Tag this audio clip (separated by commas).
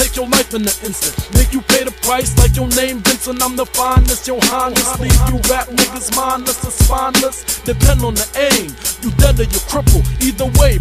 Hip hop music, Music, Rapping